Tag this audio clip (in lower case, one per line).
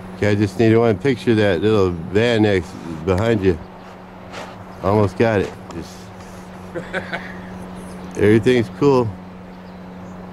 speech